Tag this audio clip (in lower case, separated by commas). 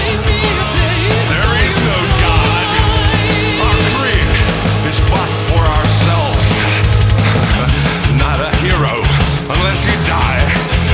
music